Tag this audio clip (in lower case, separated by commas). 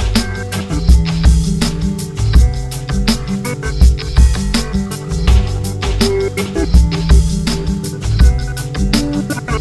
music